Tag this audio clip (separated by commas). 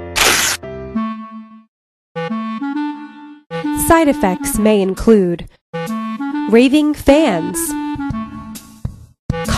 Music, Speech, inside a small room